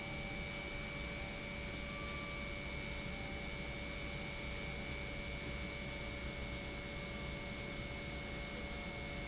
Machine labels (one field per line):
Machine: pump